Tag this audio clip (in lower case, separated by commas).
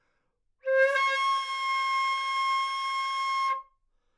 music, musical instrument, wind instrument